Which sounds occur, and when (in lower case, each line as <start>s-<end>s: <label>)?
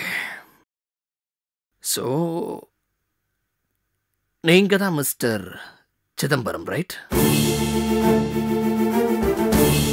0.0s-0.6s: human voice
1.7s-7.1s: background noise
1.7s-2.6s: man speaking
4.4s-5.8s: man speaking
6.1s-7.0s: man speaking
7.1s-9.9s: music